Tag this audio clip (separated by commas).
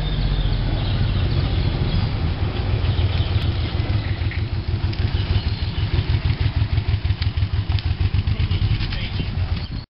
Speech, Animal